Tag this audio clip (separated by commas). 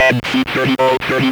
Human voice, Speech